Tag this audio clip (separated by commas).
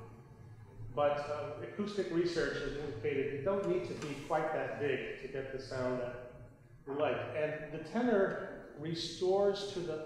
Speech